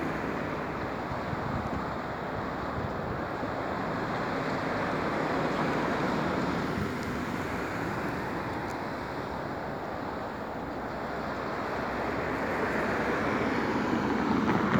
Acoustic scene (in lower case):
street